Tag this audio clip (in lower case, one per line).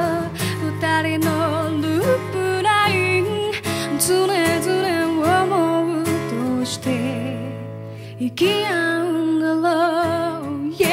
music
rhythm and blues